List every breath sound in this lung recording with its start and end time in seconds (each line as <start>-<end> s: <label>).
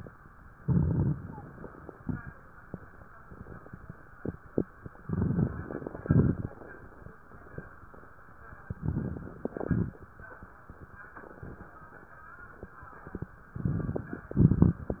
0.60-1.16 s: inhalation
0.60-1.16 s: crackles
1.16-2.31 s: exhalation
1.18-2.35 s: crackles
5.00-6.04 s: inhalation
5.00-6.04 s: crackles
6.04-7.07 s: exhalation
6.04-7.07 s: crackles
8.58-9.47 s: inhalation
8.58-9.47 s: crackles
9.48-10.38 s: exhalation
9.48-10.38 s: crackles
13.40-14.29 s: inhalation
13.40-14.29 s: crackles
14.32-15.00 s: exhalation
14.32-15.00 s: crackles